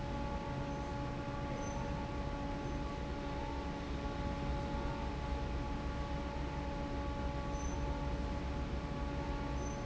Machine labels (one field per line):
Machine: fan